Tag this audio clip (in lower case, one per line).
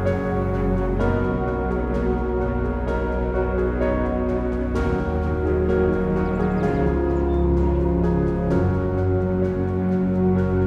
music